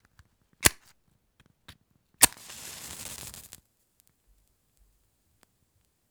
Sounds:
fire

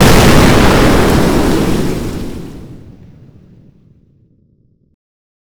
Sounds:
explosion

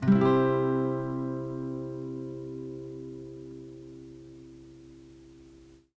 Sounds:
musical instrument
music
guitar
plucked string instrument

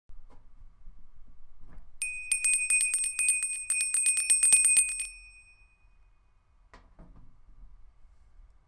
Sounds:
bell

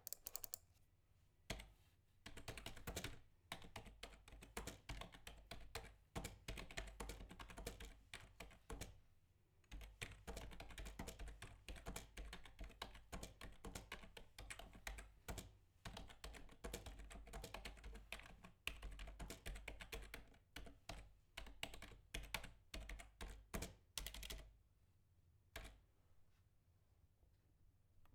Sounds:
typing
computer keyboard
domestic sounds

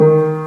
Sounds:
music
piano
keyboard (musical)
musical instrument

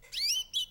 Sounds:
chirp
bird call
bird
animal
wild animals

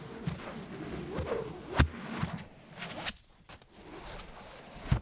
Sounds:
swoosh

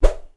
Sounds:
swoosh

